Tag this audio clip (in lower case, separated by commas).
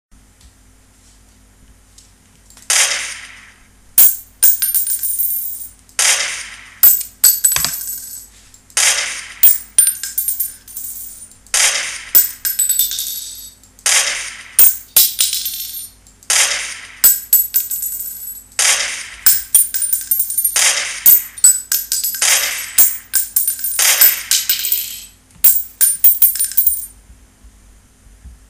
gunshot, explosion